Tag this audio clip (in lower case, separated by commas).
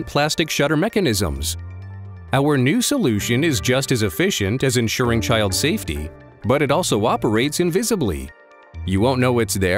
music, speech